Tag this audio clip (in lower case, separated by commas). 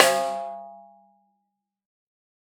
snare drum, drum, music, percussion, musical instrument